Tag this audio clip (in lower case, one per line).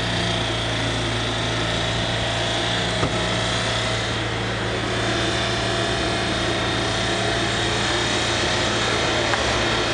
medium engine (mid frequency)
engine
revving
car